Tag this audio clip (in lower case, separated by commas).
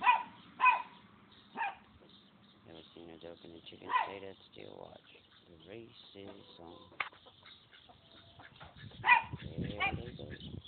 speech, animal